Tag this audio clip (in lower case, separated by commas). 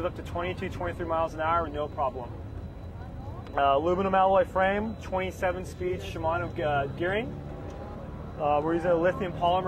vehicle, speech